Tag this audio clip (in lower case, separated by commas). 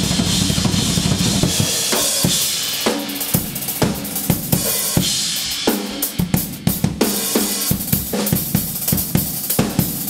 snare drum, drum kit, bass drum, hi-hat, rimshot, cymbal, percussion, drum, drum roll